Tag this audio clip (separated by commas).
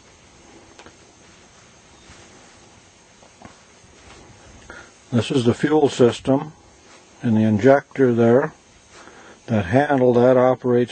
Speech